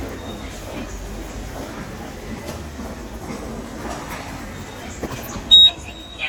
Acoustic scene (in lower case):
subway station